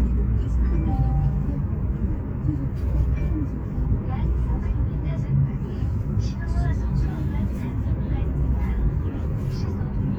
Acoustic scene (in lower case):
car